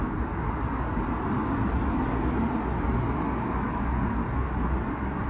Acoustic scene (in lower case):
street